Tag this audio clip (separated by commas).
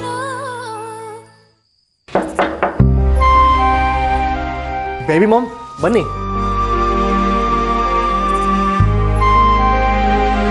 Speech, inside a small room, Music